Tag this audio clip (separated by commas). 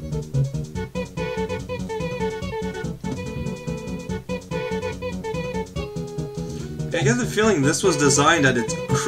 Music, Speech